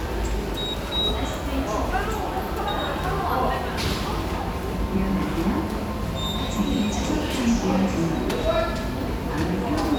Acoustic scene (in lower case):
subway station